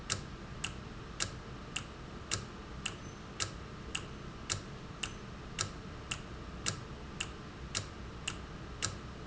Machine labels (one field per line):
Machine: valve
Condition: normal